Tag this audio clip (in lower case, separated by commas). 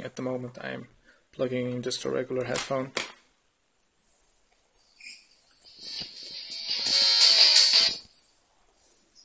music, speech